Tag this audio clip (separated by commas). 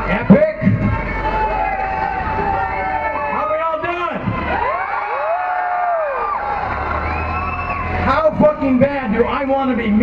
Male speech, Speech